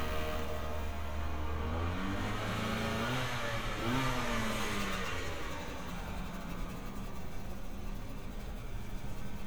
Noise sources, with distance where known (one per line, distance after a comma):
engine of unclear size, near
unidentified powered saw, near